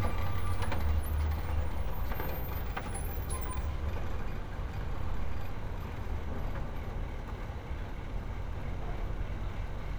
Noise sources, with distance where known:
engine of unclear size, near

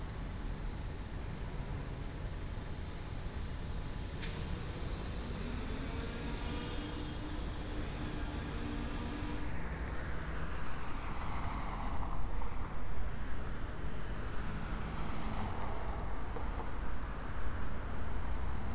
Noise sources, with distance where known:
engine of unclear size, far

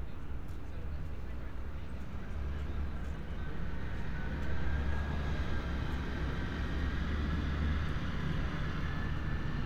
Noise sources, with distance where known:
large-sounding engine
person or small group talking

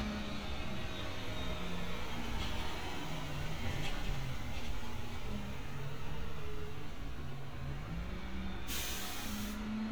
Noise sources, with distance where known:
large-sounding engine, near

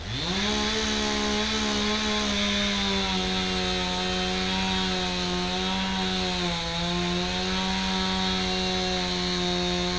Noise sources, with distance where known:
chainsaw, near

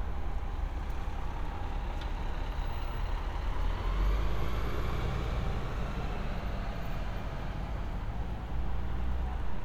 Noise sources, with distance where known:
engine of unclear size

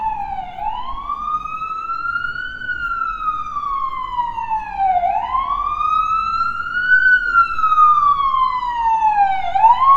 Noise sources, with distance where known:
siren, near

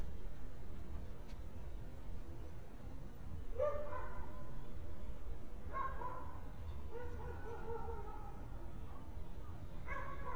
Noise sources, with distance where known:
dog barking or whining, far

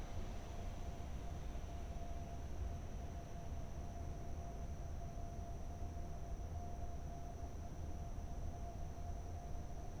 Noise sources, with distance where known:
background noise

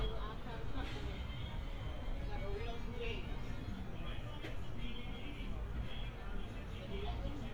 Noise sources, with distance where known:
music from an unclear source, far
person or small group talking, near

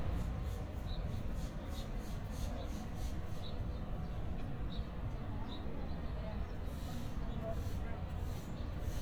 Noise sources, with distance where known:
person or small group talking, far

